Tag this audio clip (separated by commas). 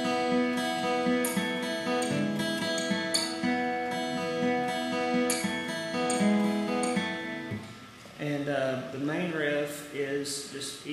Guitar, Plucked string instrument, Musical instrument